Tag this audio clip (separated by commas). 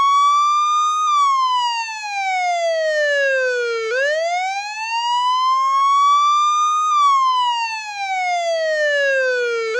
Police car (siren), Vehicle, Car